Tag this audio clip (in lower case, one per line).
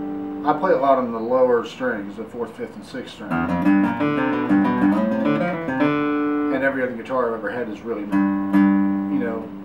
guitar
speech
musical instrument
acoustic guitar
music
plucked string instrument